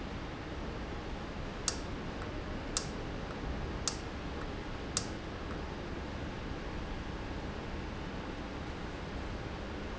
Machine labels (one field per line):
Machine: valve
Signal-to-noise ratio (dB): -6 dB